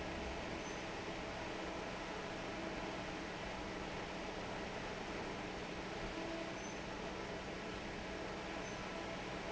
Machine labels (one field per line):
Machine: fan